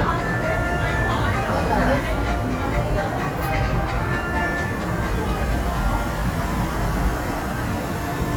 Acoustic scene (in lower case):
subway station